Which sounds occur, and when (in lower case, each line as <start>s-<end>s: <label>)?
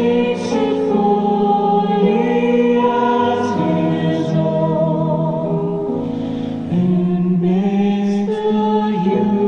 0.0s-5.8s: choir
0.0s-9.4s: music
5.9s-6.5s: breathing
6.6s-9.4s: choir